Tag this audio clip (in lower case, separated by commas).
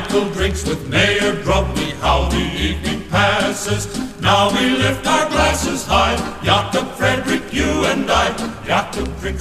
music, choir